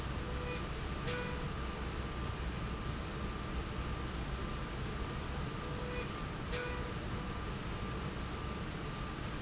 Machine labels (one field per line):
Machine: slide rail